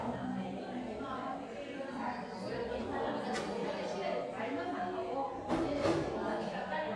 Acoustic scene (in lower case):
cafe